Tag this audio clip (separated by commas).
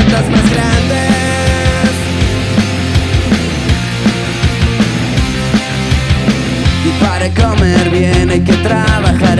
Music